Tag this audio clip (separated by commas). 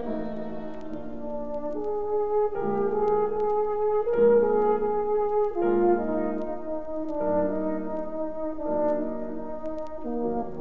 Music, Musical instrument, fiddle